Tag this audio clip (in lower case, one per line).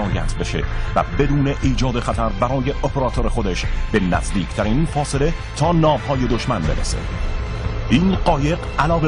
music
speech